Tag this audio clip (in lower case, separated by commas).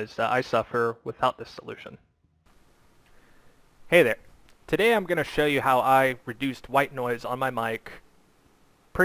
speech